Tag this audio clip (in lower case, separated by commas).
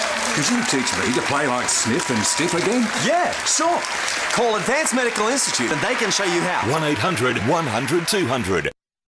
speech